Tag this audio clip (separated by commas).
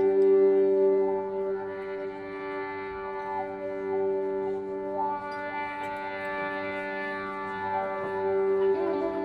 Violin, Bowed string instrument